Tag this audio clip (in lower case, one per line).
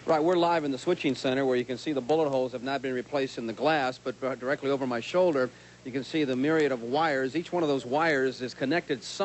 speech